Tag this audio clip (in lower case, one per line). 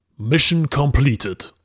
human voice
speech
man speaking